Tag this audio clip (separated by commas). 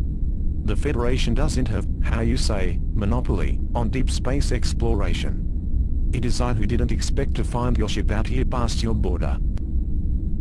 Speech